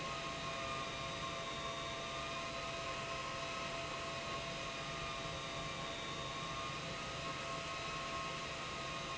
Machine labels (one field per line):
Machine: pump